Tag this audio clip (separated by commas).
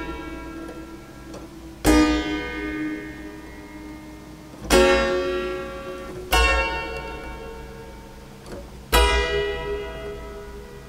playing harpsichord